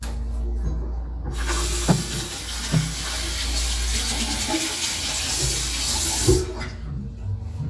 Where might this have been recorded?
in a restroom